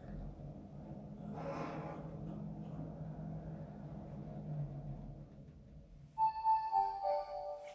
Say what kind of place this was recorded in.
elevator